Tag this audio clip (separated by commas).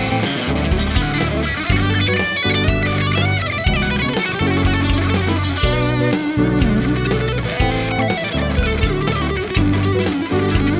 Electric guitar, Plucked string instrument, Music, Musical instrument, Guitar, playing electric guitar